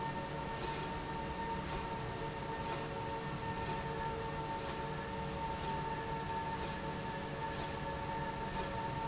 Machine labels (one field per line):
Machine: slide rail